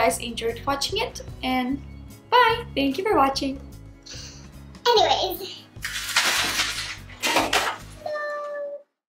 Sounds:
music, speech

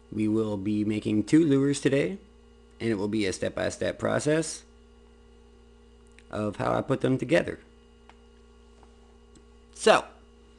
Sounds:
speech

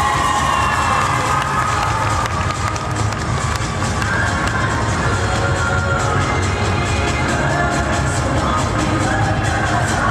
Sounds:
cheering

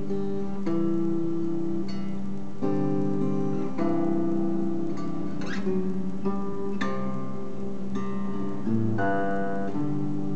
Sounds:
musical instrument, guitar, music, acoustic guitar

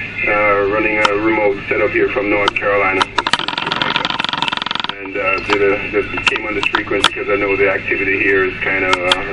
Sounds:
speech

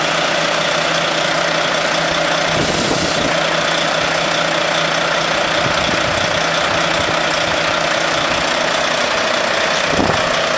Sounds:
vehicle, truck

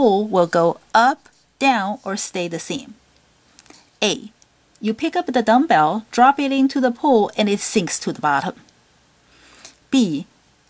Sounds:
speech

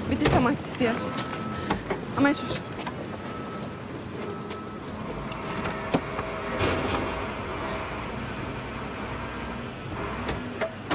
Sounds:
speech

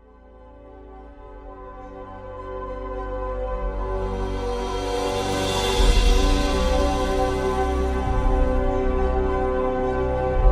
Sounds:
music

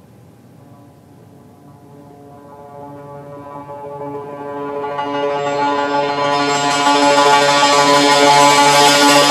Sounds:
music, musical instrument, inside a large room or hall

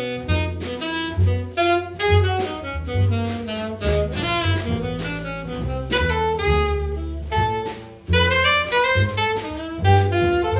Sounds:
saxophone, playing saxophone, musical instrument, music, jazz

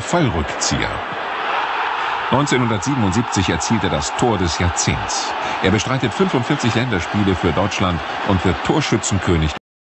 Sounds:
speech

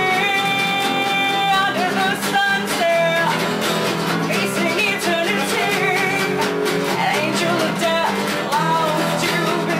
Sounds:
country, music

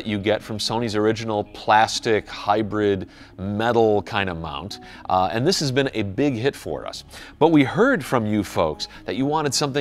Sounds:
speech, music

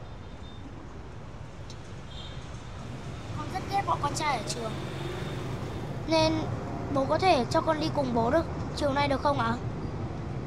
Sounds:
speech, vehicle

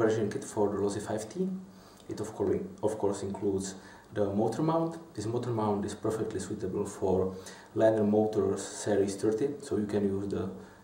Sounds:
speech

